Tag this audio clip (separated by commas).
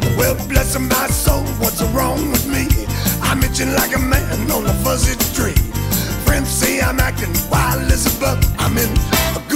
Music, Pop music